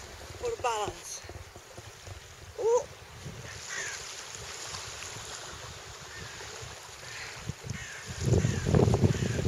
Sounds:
outside, rural or natural
speech

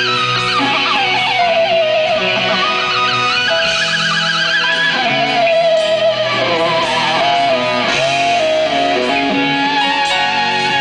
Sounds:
rock and roll
music

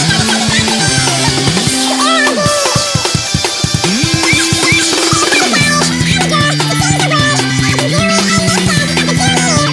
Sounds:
music

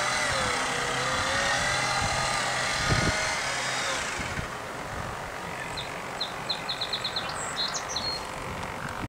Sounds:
speedboat
vehicle

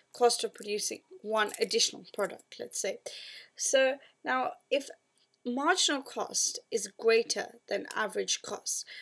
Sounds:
speech

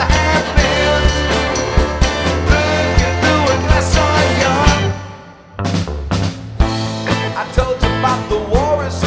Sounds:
music

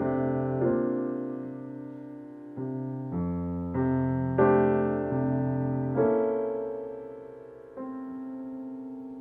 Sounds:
musical instrument
music
piano

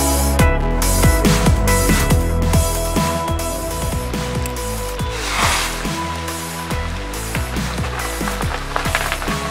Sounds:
lighting firecrackers

